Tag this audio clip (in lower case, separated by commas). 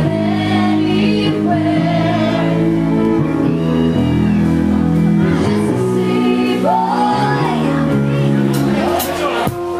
speech, music